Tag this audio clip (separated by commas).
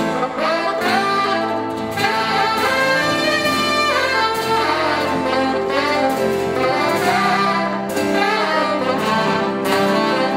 Musical instrument, Saxophone, Music, playing saxophone